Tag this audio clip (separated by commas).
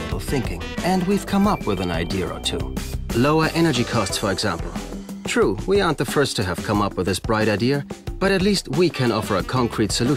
Music, Speech